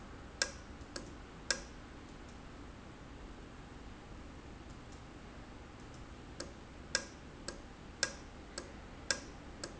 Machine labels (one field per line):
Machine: valve